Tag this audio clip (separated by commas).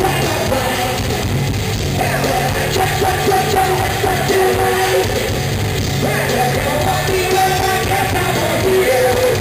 Music